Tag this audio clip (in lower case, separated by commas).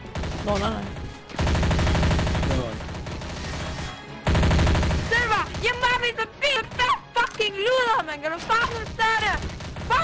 music, speech, fusillade